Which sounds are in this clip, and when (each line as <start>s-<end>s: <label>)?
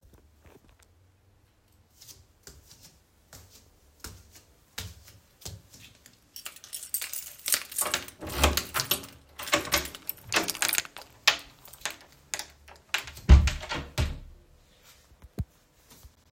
2.0s-6.2s: footsteps
6.4s-13.3s: keys
8.2s-14.2s: door